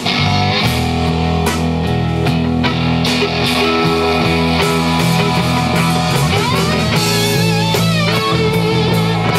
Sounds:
Plucked string instrument, Rock music, Musical instrument, Guitar, Music, Punk rock

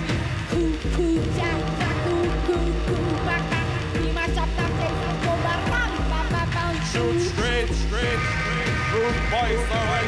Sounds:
Music

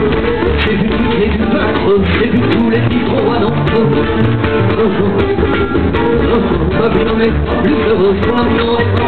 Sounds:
Music

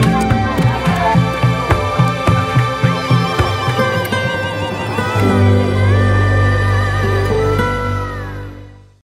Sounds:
Music

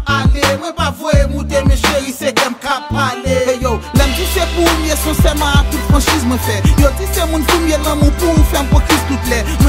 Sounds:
Exciting music, Music

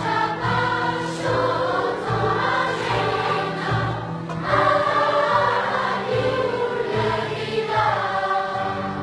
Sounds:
singing choir

